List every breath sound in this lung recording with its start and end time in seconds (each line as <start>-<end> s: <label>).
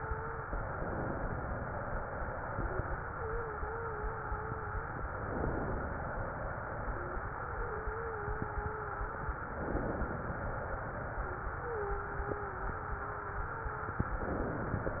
0.00-0.53 s: wheeze
3.10-4.92 s: wheeze
6.91-9.38 s: wheeze
11.65-14.11 s: wheeze